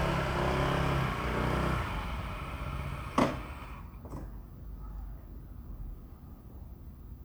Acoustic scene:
residential area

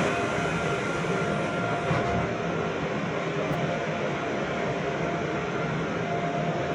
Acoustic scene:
subway train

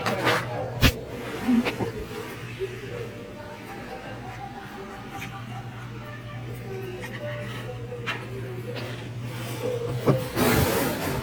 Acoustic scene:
restaurant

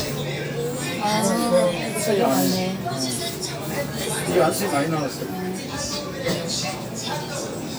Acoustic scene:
crowded indoor space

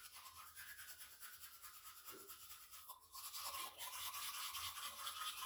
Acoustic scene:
restroom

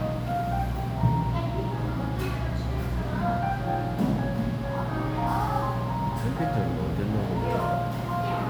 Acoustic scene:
crowded indoor space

